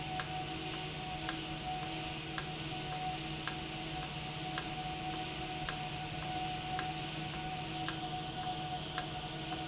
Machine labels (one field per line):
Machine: valve